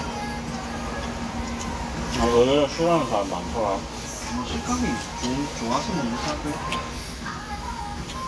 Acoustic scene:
restaurant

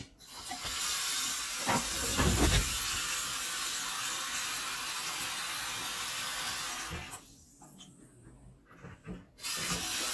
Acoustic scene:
kitchen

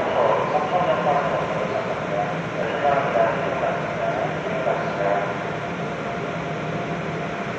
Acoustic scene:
subway train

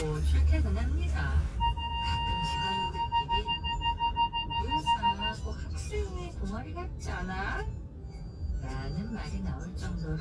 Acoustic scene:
car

